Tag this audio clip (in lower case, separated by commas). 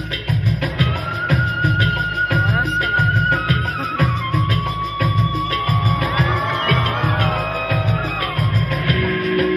speech, music